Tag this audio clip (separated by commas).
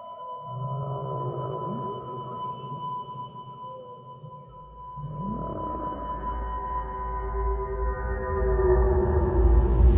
Siren